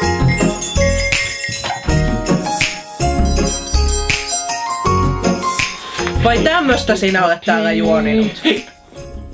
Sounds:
tinkle

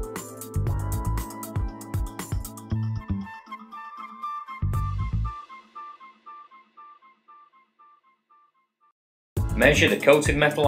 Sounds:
Speech, Music

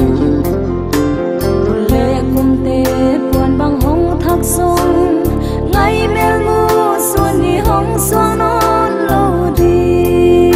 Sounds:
Music

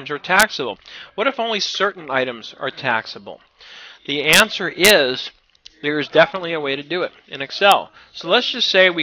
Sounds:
Speech

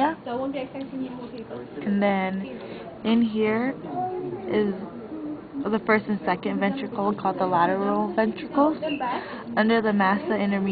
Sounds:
Speech

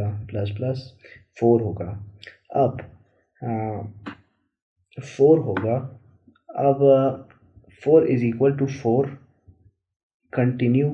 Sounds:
Speech

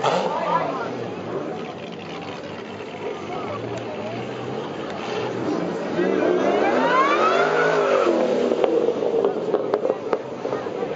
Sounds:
Speech

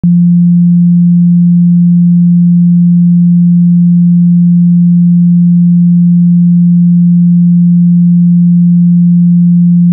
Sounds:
Sine wave

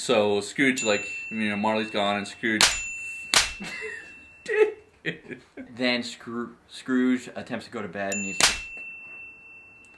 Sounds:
smack

